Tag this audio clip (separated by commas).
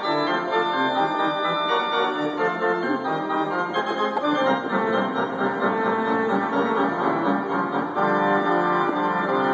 playing electronic organ